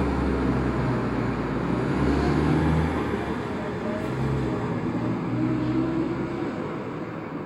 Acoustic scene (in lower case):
street